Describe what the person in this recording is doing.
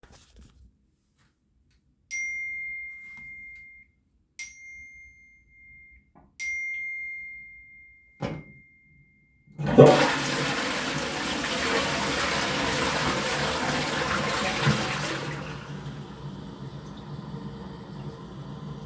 Your roommate sends you a rather stressed text. You've made him wait way too long for the toilet.